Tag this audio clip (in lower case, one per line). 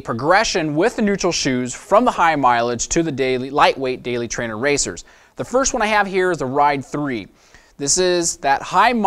speech